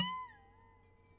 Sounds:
Harp, Musical instrument, Music

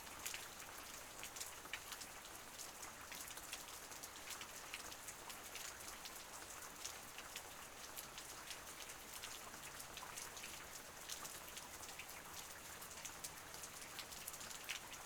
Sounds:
Water, Rain

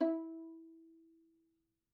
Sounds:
Musical instrument, Music, Bowed string instrument

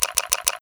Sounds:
Camera, Mechanisms

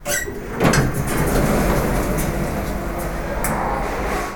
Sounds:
Door, Sliding door, Domestic sounds

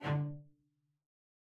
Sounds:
Musical instrument, Music, Bowed string instrument

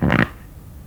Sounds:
Fart

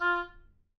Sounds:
Music, Wind instrument, Musical instrument

